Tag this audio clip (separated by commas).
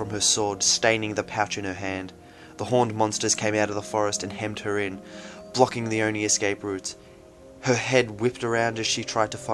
Speech, Music, Narration